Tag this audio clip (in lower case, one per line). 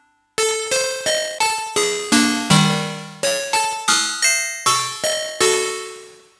keyboard (musical)
musical instrument
music